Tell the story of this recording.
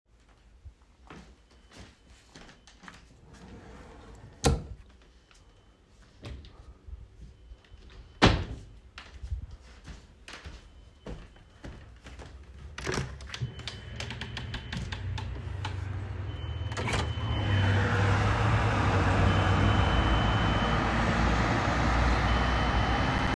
I went to my closet and closed a drawer and the doors. Then I went to the window, opened the double window, and watched the traffic.